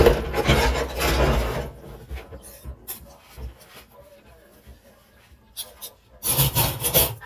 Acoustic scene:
kitchen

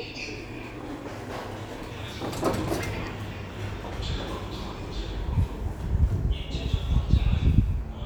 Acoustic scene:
elevator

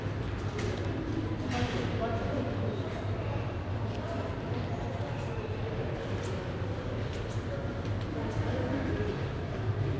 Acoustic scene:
subway station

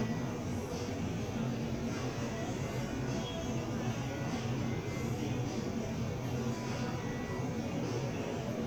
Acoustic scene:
crowded indoor space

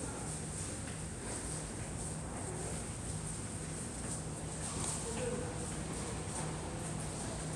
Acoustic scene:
subway station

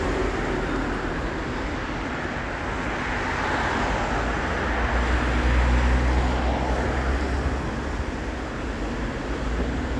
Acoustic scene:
street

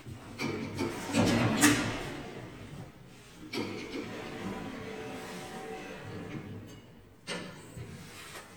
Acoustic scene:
elevator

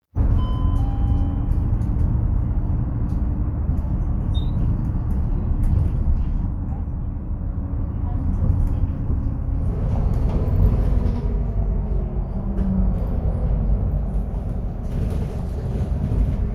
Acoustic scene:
bus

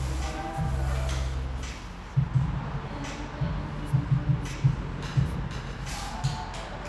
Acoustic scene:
cafe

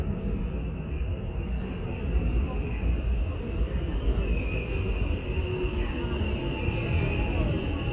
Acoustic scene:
subway station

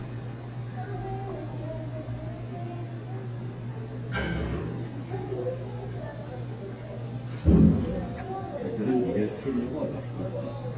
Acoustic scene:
restaurant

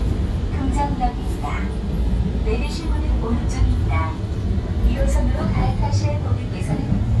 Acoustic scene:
subway train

